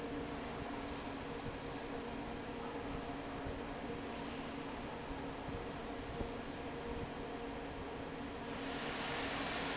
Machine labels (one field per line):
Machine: fan